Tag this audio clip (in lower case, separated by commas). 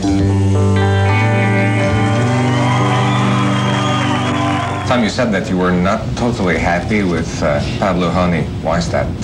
music, pop music